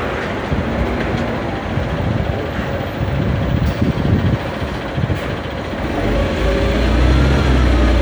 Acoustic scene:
street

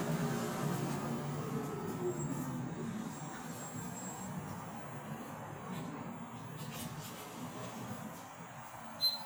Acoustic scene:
bus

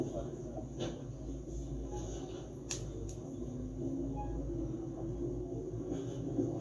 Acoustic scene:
subway train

